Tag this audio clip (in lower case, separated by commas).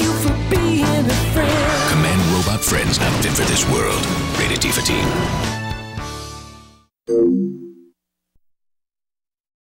music, speech